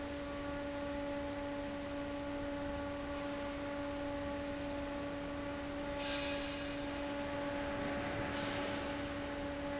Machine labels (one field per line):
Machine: fan